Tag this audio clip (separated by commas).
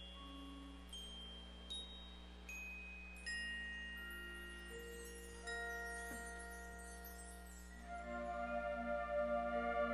Music